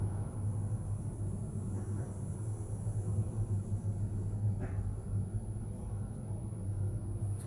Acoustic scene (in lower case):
elevator